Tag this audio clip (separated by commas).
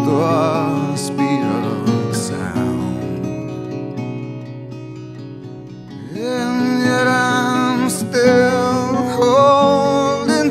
Sound effect, Music